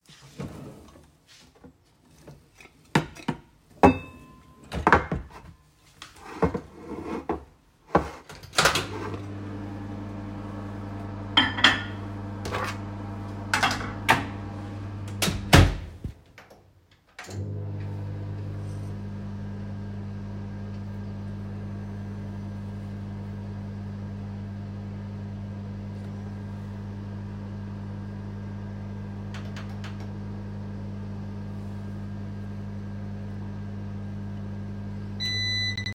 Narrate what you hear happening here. I opened a drawer and took out a plate. then placed food on the plate, put it in the microwave, and started the microwave.